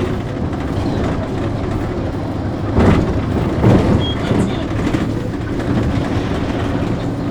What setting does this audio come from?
bus